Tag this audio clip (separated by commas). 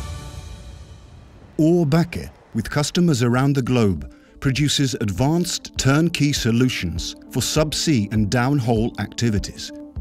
Speech, Music